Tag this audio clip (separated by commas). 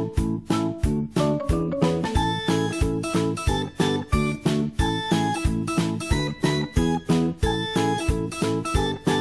Music